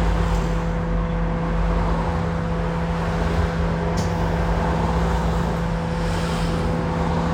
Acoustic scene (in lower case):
bus